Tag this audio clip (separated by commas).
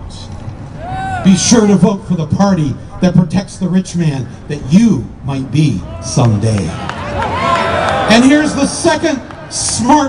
man speaking, monologue, Speech